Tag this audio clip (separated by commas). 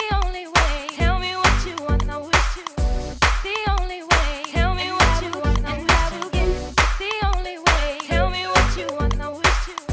Music